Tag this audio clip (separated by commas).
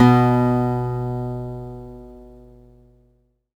Music, Guitar, Acoustic guitar, Plucked string instrument, Musical instrument